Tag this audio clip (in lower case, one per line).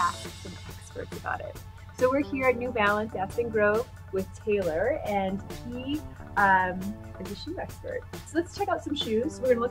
music
speech